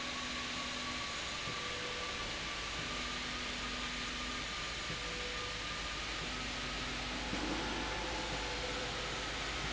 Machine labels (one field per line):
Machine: slide rail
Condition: normal